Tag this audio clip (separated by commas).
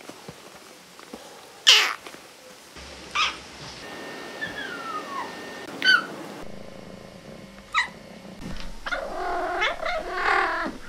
cat caterwauling